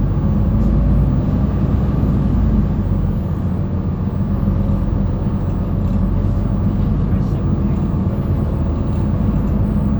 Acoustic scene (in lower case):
bus